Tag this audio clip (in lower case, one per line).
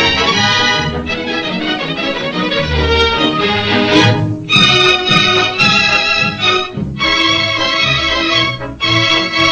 music